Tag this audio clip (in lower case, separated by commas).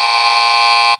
alarm